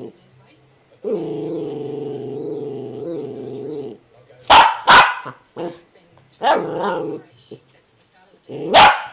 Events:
0.0s-0.1s: dog
0.0s-0.6s: woman speaking
0.0s-9.1s: background noise
1.0s-4.0s: growling
4.4s-5.3s: bark
5.2s-5.4s: growling
5.5s-5.9s: woman speaking
6.4s-7.2s: growling
7.1s-8.4s: woman speaking
8.5s-9.1s: bark

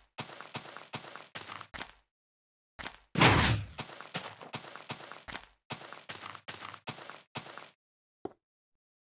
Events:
3.1s-3.8s: sound effect
8.2s-8.4s: walk

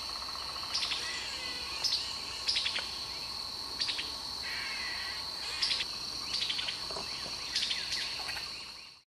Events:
0.0s-1.9s: owl
0.0s-9.0s: insect
0.0s-9.0s: wind
0.7s-1.0s: bird song
1.8s-2.1s: bird song
2.4s-2.8s: bird song
2.7s-2.9s: tap
3.0s-3.3s: bird song
3.7s-4.1s: bird song
4.4s-5.2s: owl
5.4s-5.9s: owl
5.5s-5.9s: bird song
6.3s-6.7s: bird song
6.9s-7.0s: generic impact sounds
7.2s-7.3s: generic impact sounds
7.5s-9.0s: bird song

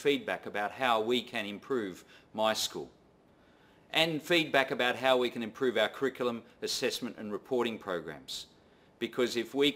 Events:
0.0s-2.0s: male speech
0.0s-9.7s: background noise
2.0s-2.3s: breathing
2.3s-2.8s: male speech
3.2s-3.9s: breathing
3.9s-6.4s: male speech
6.6s-8.5s: male speech
8.6s-8.9s: breathing
9.0s-9.7s: male speech

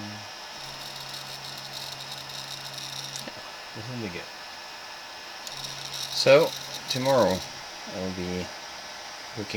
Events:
0.0s-9.5s: mechanisms
3.7s-4.3s: man speaking
5.8s-6.5s: man speaking
6.8s-7.5s: man speaking
7.8s-8.5s: man speaking
9.1s-9.5s: man speaking

